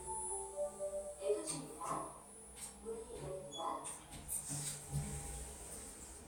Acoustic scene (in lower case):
elevator